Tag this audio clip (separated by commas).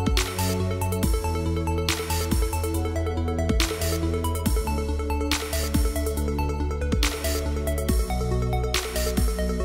Music